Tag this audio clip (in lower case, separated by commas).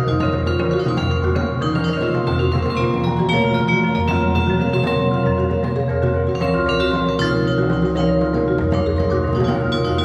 music, marimba, vibraphone, percussion, musical instrument